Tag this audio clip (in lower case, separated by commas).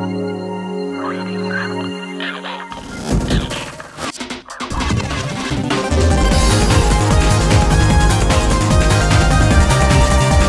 music